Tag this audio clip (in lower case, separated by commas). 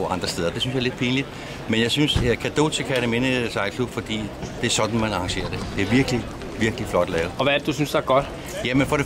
wind noise (microphone), wind